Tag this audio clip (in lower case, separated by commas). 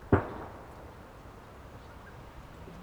explosion, gunfire